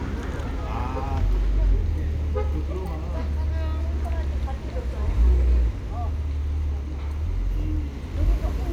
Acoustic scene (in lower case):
residential area